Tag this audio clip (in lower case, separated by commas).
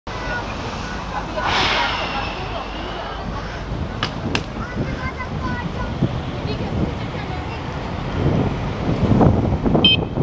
car, traffic noise, vehicle